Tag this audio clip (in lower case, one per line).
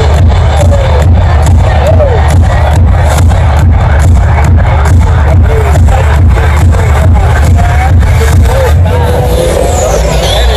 people shuffling